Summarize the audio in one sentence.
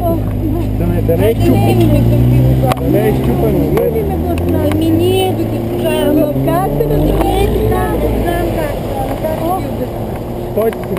People speak as a cars engine accelerates